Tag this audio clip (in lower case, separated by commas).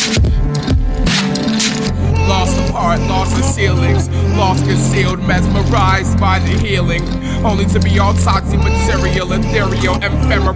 rhythm and blues, music, funk